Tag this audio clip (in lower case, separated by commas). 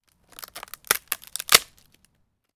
crack, wood